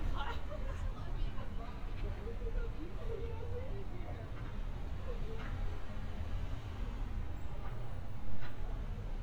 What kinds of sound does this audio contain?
person or small group talking